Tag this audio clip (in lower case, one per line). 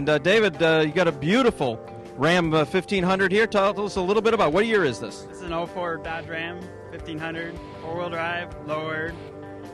music
speech